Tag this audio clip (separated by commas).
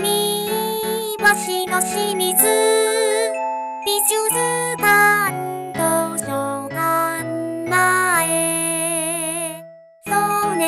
Music of Asia, Music